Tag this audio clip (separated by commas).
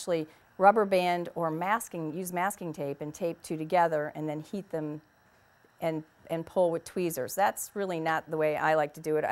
Speech